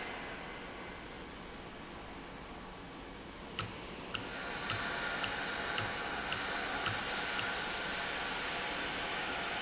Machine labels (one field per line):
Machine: valve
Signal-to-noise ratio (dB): -6 dB